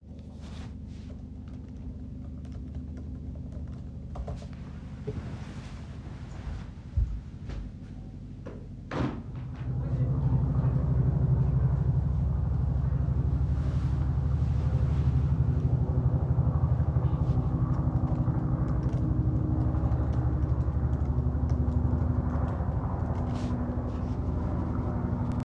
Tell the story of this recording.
I typed on my laptop. Then went to the window and opend it. I came back and continued typing while there was a helicopter outside.